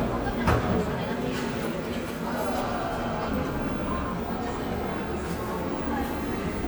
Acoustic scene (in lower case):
cafe